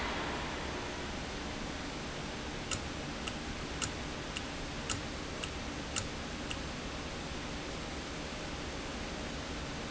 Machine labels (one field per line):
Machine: valve